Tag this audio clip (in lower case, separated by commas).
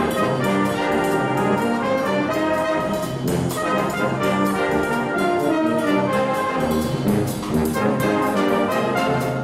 music